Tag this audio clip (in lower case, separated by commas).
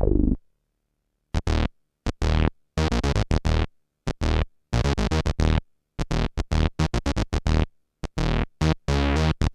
music, sampler